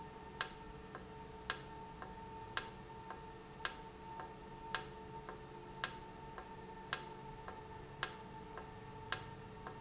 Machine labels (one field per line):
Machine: valve